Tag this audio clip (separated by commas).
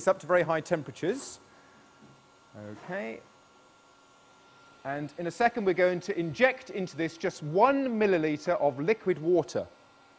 Speech